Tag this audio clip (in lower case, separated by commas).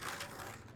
vehicle, skateboard